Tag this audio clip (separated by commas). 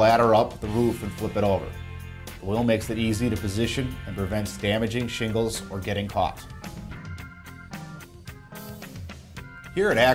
Music, Speech